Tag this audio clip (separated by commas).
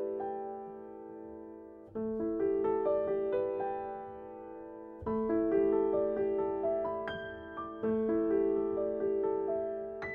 Piano